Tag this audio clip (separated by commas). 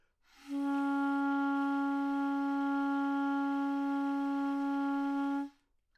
woodwind instrument, Musical instrument, Music